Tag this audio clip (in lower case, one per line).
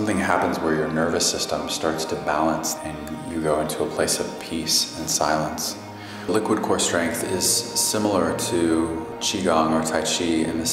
music
speech